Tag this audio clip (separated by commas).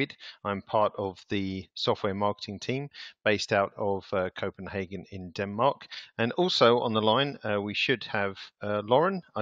Speech